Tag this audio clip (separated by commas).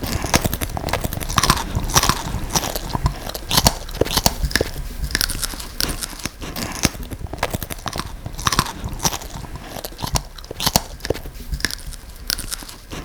mastication